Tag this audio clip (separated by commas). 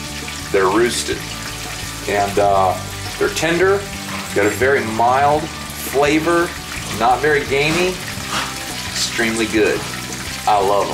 Frying (food)